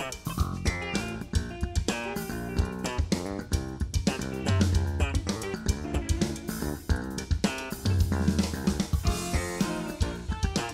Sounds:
Drum kit, Musical instrument, Drum, Rimshot, Music

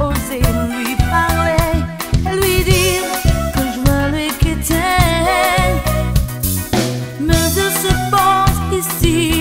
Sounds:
Music

